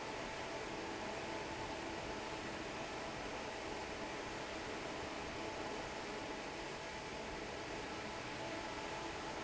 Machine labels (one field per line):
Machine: fan